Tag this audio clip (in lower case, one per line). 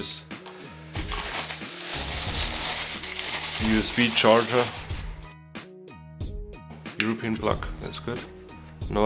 speech
music